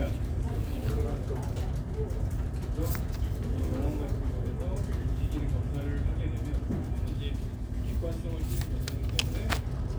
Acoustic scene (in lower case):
crowded indoor space